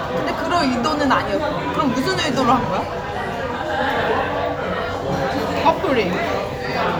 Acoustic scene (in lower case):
crowded indoor space